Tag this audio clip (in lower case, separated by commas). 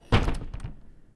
door, home sounds, slam